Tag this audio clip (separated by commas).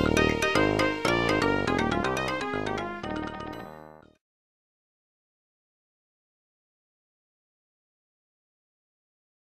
Video game music, Music